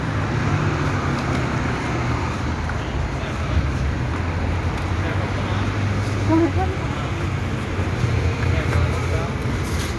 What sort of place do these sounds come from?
street